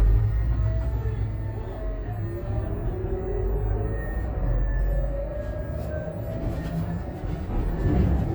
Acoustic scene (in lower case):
bus